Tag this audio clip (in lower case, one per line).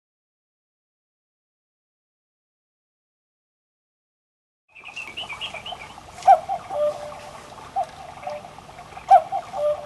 clock